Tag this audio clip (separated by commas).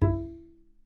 Music, Musical instrument, Bowed string instrument